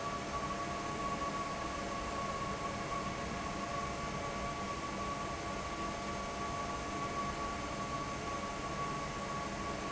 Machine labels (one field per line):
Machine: fan